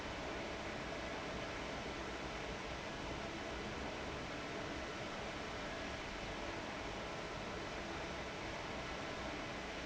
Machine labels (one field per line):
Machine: fan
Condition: abnormal